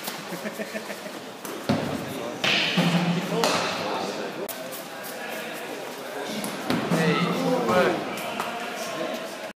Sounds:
speech

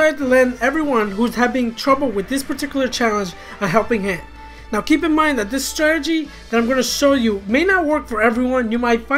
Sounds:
music
speech

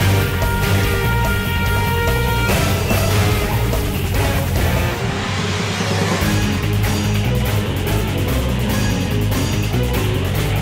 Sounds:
music

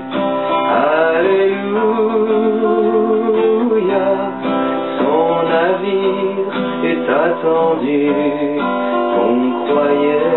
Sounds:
music

